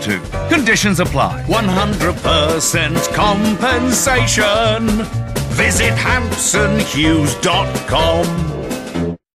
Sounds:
music, speech

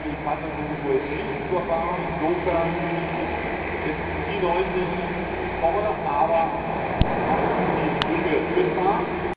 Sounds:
truck, vehicle, speech

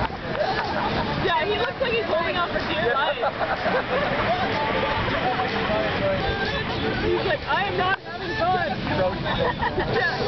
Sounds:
music, vehicle, water vehicle, speech

